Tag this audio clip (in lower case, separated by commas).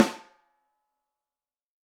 musical instrument, snare drum, drum, percussion, music